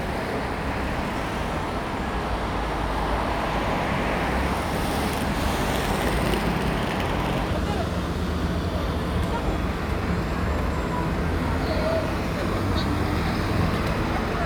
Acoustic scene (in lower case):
street